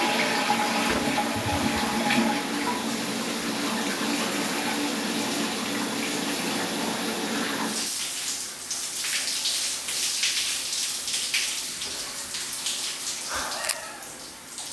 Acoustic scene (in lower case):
restroom